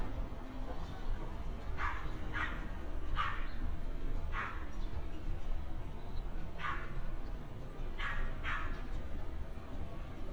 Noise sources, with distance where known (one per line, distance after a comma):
dog barking or whining, near